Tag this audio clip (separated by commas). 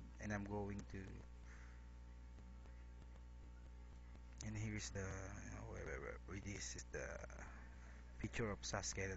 Speech